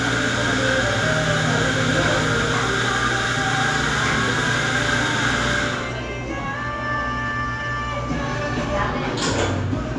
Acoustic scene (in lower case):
cafe